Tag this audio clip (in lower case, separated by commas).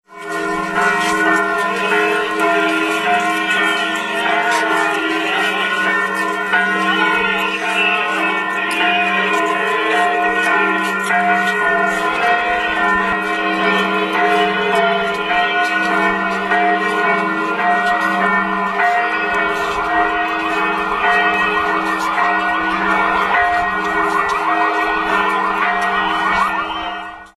human voice, singing, church bell, bell